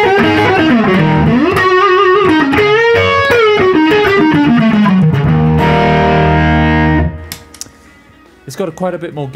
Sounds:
guitar, music, effects unit, distortion, musical instrument

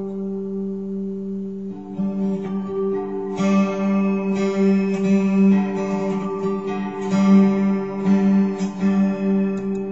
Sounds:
acoustic guitar, music, guitar, musical instrument, plucked string instrument, effects unit

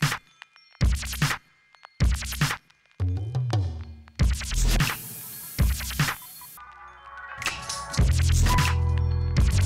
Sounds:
scratching (performance technique), music

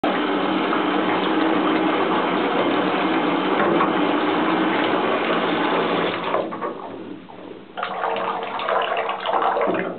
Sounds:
bathtub (filling or washing), inside a small room

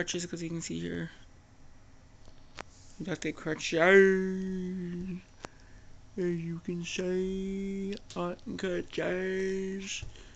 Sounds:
speech

